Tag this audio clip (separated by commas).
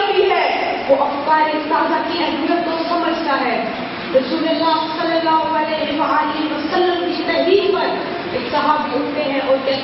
Speech, Child speech, monologue